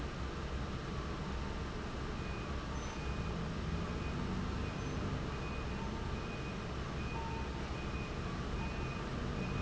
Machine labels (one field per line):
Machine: fan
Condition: abnormal